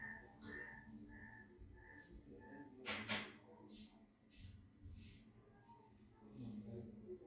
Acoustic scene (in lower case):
restroom